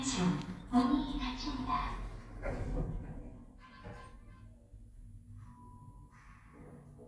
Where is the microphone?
in an elevator